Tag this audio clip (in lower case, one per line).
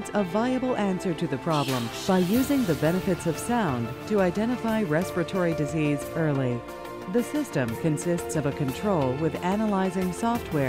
music
speech